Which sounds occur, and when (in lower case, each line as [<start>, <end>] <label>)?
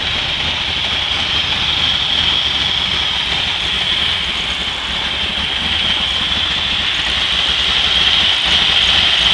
[0.00, 9.33] medium engine (mid frequency)